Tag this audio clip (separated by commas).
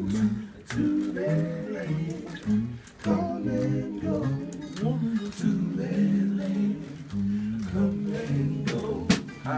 Music, Male singing